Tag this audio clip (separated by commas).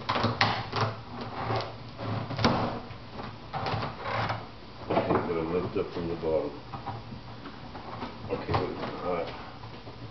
Speech